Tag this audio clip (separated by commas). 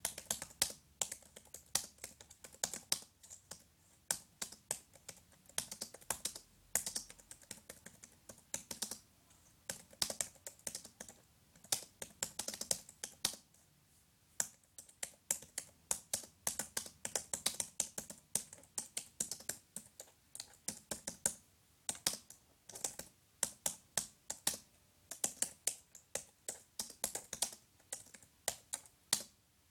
Typing, Domestic sounds, Computer keyboard